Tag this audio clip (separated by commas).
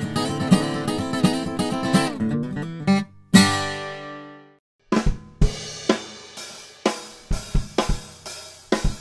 playing cymbal, Hi-hat, Cymbal